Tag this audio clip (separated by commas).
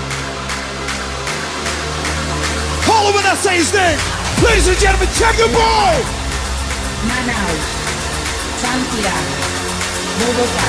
Electronic music, Speech, Music, Electronic dance music